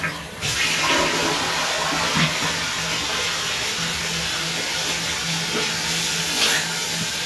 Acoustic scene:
restroom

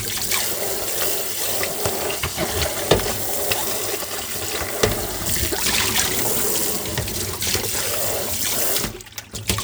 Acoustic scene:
kitchen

